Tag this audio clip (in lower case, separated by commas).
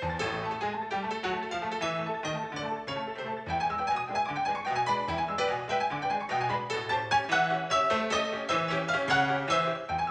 music